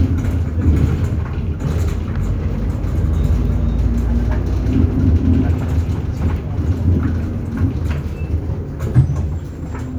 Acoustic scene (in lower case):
bus